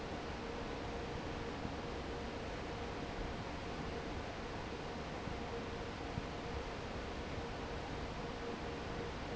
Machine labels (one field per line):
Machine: fan